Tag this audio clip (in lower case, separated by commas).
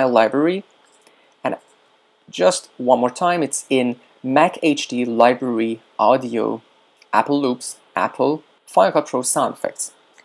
speech